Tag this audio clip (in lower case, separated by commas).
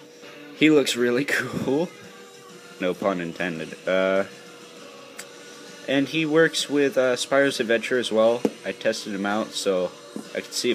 music, speech